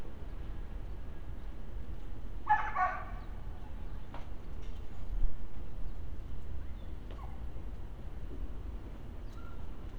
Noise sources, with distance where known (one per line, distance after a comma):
dog barking or whining, near